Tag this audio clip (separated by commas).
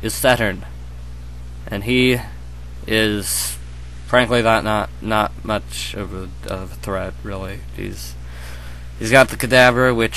Speech